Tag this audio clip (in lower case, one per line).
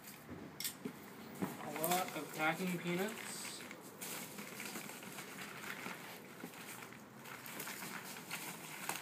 speech